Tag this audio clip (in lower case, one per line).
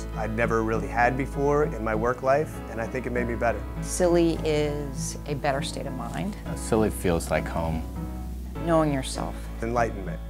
music
speech